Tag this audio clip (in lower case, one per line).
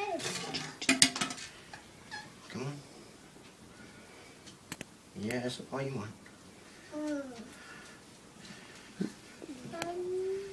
speech